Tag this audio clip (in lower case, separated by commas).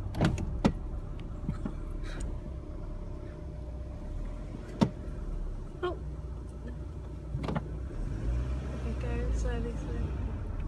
speech